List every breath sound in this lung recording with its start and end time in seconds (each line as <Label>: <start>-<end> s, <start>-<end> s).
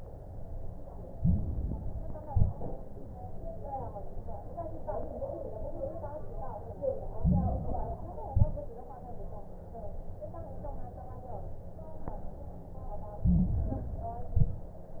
Inhalation: 1.08-2.20 s, 7.14-8.19 s, 13.21-14.21 s
Exhalation: 2.24-2.83 s, 8.30-8.89 s, 14.25-14.84 s
Crackles: 1.08-2.20 s, 2.24-2.83 s, 7.14-8.19 s, 8.30-8.89 s, 13.21-14.21 s, 14.25-14.84 s